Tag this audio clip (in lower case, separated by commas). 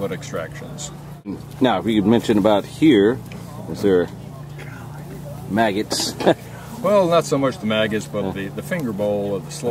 speech